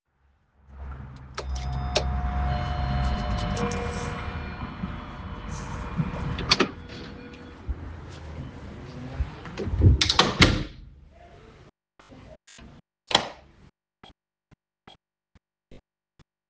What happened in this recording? I rang the bell, opened and closed the door, turned on the light switch.